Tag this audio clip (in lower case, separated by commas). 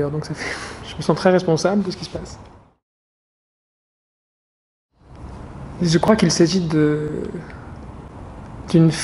speech